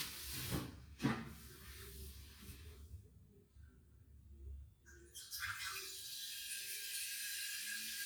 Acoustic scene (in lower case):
restroom